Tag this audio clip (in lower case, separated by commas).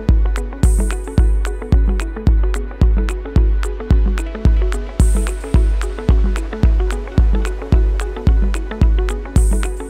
zither, pizzicato